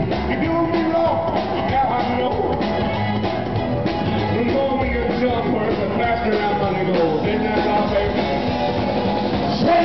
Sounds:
music, roll, singing, rock music

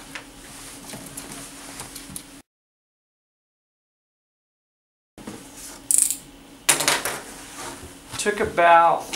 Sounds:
speech

